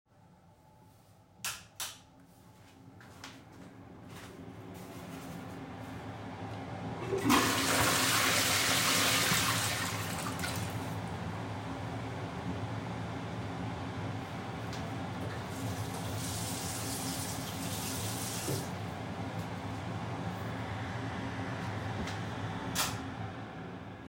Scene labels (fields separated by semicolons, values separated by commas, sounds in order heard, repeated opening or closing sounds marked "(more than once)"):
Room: bathroom; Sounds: light switch, footsteps, toilet flushing, running water